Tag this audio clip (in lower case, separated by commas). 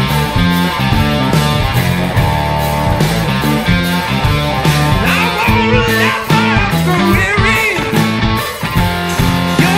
music, rock music